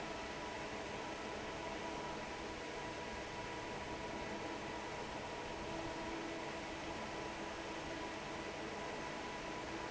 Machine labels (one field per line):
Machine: fan